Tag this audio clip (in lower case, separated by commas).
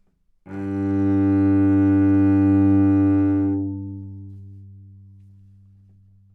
musical instrument, music, bowed string instrument